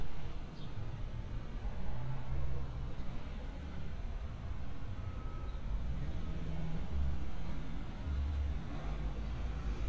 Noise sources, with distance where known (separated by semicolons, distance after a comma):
medium-sounding engine, far